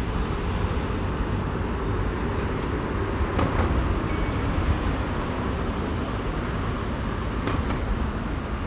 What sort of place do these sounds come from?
street